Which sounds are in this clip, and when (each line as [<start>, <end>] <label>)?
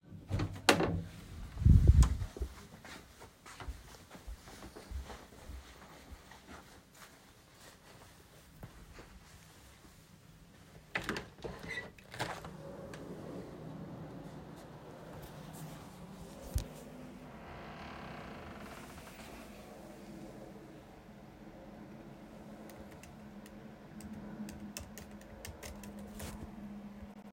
[0.02, 3.18] door
[2.83, 10.96] footsteps
[10.86, 12.56] window
[10.96, 13.49] door
[17.32, 19.21] window
[22.53, 27.33] keyboard typing